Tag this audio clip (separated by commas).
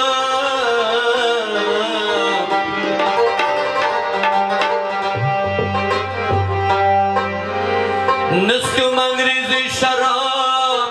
Music, Middle Eastern music